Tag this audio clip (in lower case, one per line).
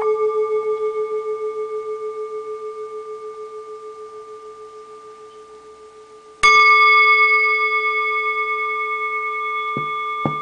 singing bowl